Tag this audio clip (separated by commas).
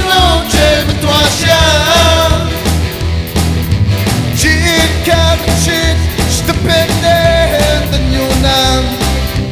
Progressive rock, Music, Rock and roll